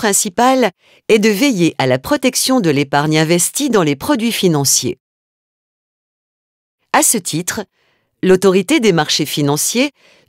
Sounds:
Speech

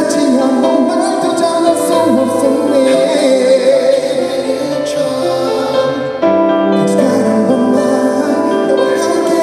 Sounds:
Music

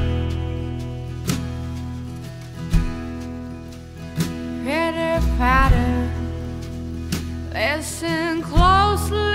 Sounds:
Music

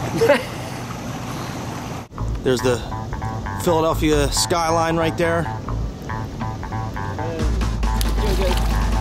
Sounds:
Speech, outside, rural or natural, Music

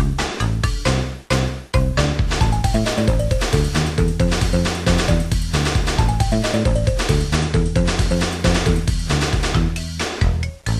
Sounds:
Music

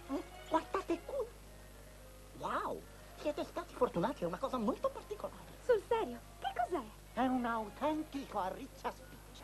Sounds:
Speech

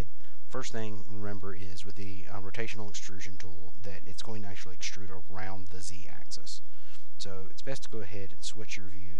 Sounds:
Speech

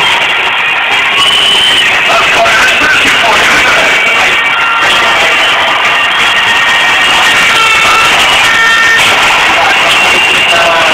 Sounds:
Music, Speech, Male speech

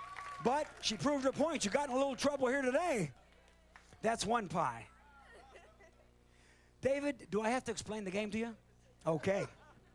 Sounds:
Speech

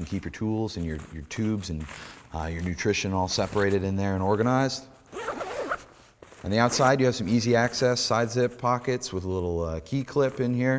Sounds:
Speech

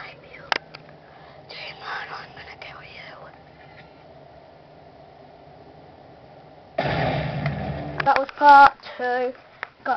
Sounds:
Speech

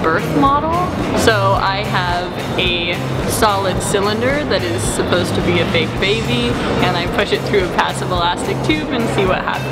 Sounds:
Music, Speech

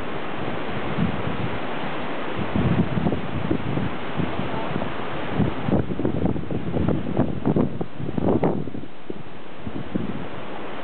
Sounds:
Ocean

